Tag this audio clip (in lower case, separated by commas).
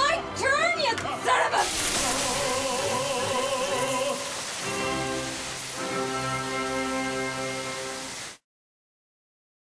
music, speech